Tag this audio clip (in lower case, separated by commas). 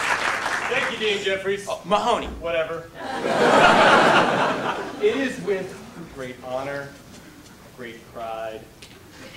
monologue, man speaking, speech